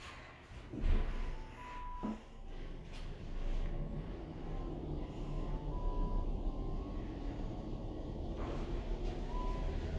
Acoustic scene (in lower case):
elevator